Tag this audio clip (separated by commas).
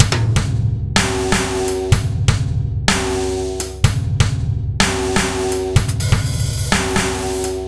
Bass drum, Music, Percussion, Snare drum, Drum, Drum kit, Musical instrument